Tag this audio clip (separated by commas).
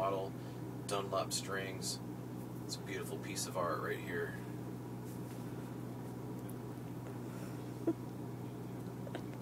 Speech